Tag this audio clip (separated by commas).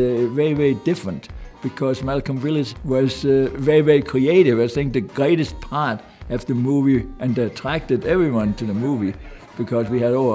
Music, Speech